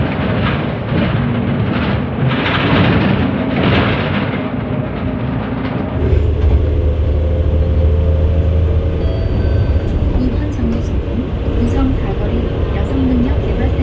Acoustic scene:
bus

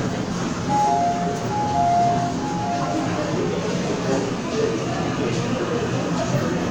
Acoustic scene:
subway station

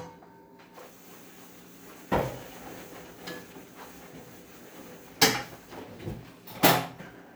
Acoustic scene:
kitchen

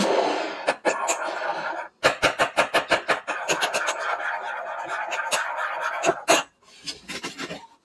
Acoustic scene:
kitchen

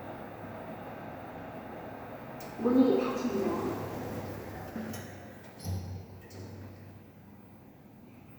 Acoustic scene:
elevator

